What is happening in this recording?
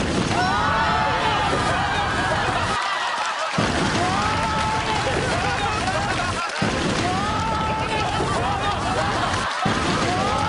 A large burst followed by people laughing and more bursts